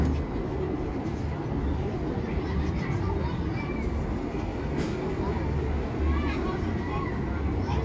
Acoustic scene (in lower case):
residential area